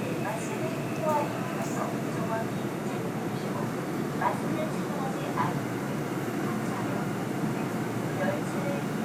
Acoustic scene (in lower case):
subway train